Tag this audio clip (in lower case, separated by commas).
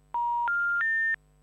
telephone, alarm